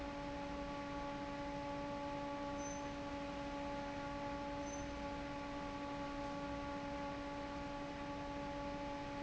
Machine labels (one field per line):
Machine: fan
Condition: normal